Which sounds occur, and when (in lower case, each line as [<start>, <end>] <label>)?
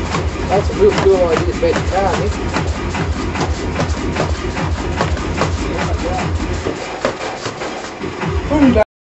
[0.00, 8.86] music
[0.00, 8.86] shuffle
[0.35, 2.65] male speech
[5.54, 6.35] male speech
[8.46, 8.86] male speech